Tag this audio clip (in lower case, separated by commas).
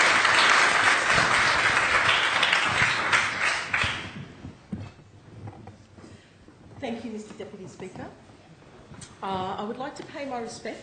female speech, speech, monologue